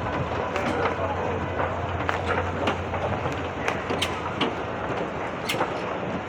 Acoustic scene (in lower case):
subway station